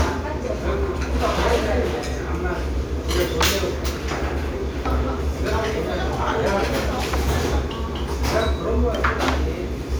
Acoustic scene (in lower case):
restaurant